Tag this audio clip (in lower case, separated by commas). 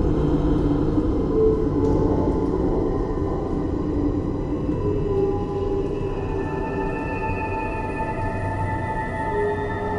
music, soundtrack music, scary music